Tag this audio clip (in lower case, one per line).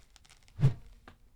whoosh